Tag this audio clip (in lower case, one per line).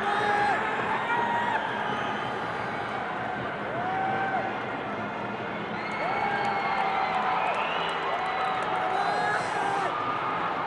outside, urban or man-made